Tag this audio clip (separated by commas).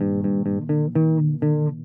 Bass guitar, Musical instrument, Plucked string instrument, Guitar, Music